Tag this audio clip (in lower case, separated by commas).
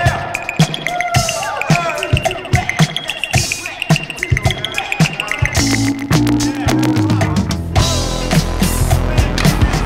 funk